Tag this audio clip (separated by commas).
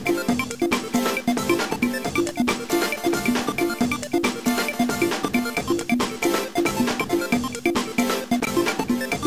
Music